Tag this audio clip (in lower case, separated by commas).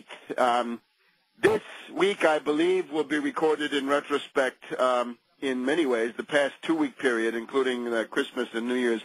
speech, radio